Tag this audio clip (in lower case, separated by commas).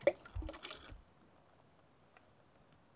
splatter, water, liquid